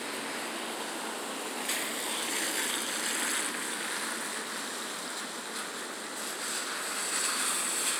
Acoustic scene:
residential area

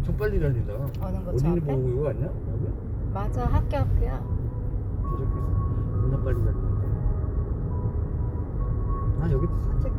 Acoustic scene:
car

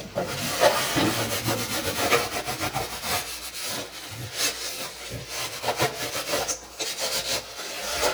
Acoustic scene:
kitchen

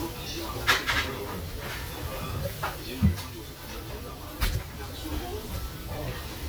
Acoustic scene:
restaurant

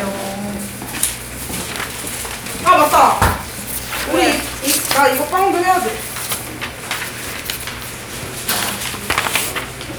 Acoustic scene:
crowded indoor space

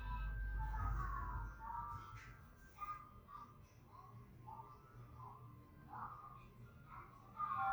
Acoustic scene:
elevator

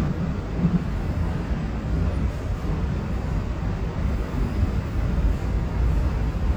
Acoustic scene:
subway train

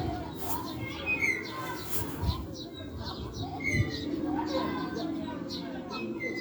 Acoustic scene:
residential area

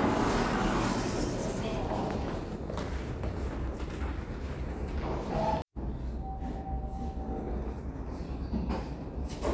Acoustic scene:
elevator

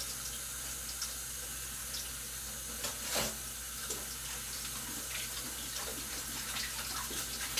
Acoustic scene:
kitchen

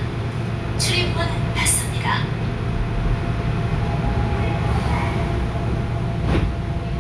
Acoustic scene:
subway train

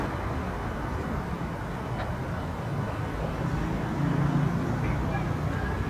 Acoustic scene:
street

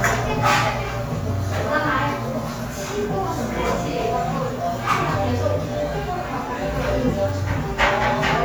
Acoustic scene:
cafe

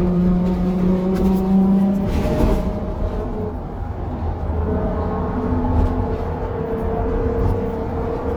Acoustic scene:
bus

